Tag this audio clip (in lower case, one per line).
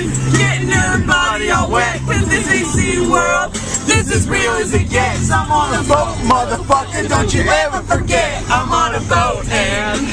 music